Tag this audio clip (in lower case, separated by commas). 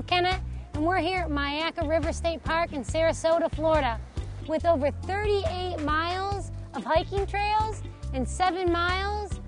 speech, music